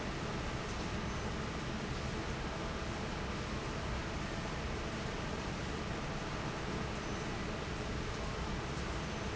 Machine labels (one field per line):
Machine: fan